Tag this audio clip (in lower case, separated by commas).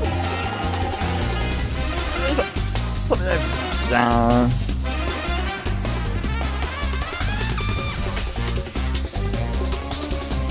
speech, music